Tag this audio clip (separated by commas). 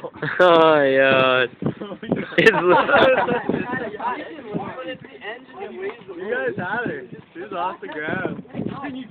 Speech